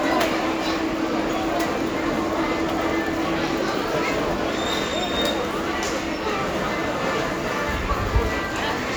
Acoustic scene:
crowded indoor space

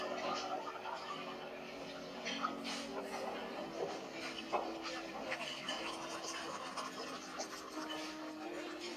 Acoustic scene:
restaurant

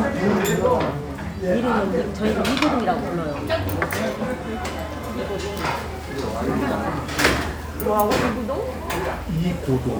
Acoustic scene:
restaurant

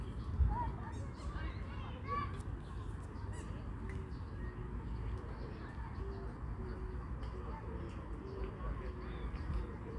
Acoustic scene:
park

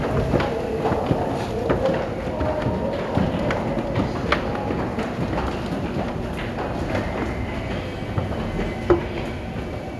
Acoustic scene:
subway station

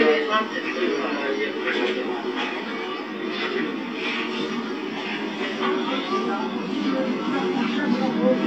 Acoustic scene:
park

